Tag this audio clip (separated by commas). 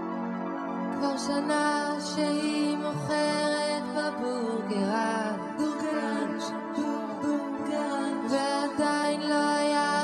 Music